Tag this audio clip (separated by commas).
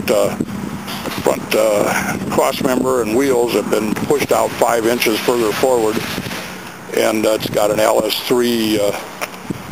Speech